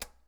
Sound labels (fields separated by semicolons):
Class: switch; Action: being turned off; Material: plastic